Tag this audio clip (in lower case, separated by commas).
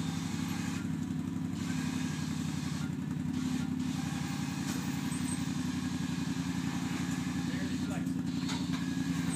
car, vehicle, motor vehicle (road)